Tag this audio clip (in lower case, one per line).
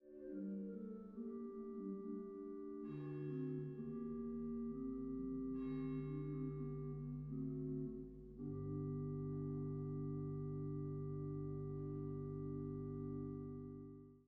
keyboard (musical)
bell
musical instrument
music
organ
church bell